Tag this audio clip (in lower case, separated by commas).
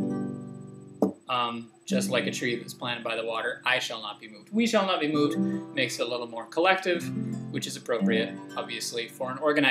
speech, music